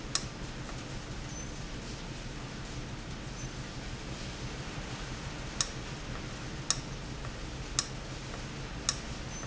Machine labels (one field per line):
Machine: valve